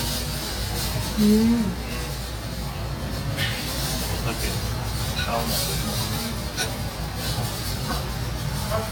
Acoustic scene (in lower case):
restaurant